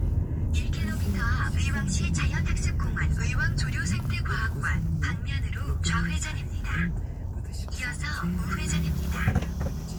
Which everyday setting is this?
car